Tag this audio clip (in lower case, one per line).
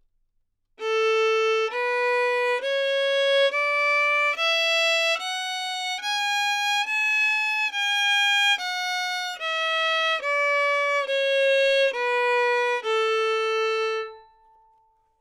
musical instrument
music
bowed string instrument